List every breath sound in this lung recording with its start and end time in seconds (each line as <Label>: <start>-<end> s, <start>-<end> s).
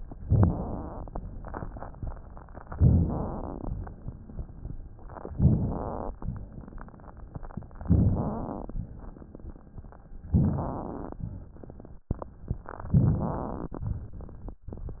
Inhalation: 0.22-1.15 s, 2.71-3.68 s, 5.31-6.13 s, 7.81-8.74 s, 10.28-11.19 s, 12.93-13.86 s
Rhonchi: 0.21-0.60 s, 2.76-3.15 s, 5.32-5.79 s, 7.81-8.44 s, 10.30-10.83 s, 12.93-13.46 s